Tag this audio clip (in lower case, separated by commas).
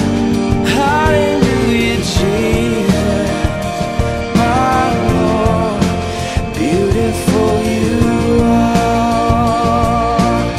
music